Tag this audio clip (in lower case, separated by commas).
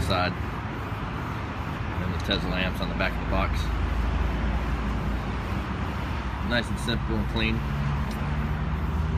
car, speech, vehicle